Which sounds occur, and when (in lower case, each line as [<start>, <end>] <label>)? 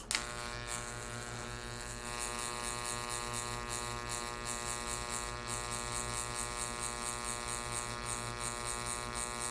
[0.00, 9.50] mechanisms
[0.07, 0.14] generic impact sounds